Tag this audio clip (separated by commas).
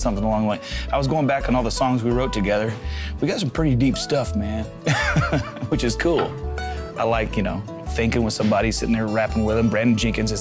Speech, Music